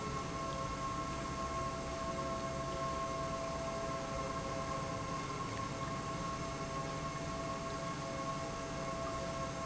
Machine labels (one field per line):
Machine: pump